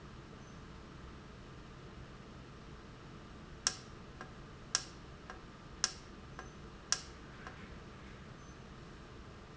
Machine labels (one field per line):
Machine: valve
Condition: normal